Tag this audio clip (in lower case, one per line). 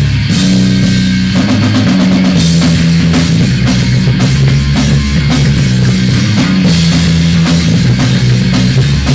guitar
drum kit
music
rock music
musical instrument